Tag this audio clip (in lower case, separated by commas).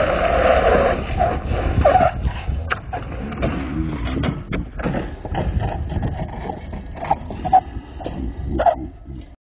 vehicle